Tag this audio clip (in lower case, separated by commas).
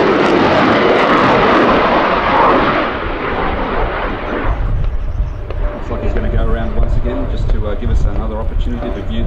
airplane flyby